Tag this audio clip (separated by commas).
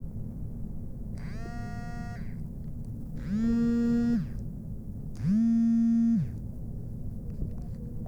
Alarm, Telephone